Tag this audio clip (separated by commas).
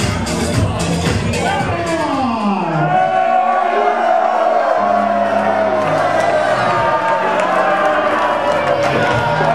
Speech, Music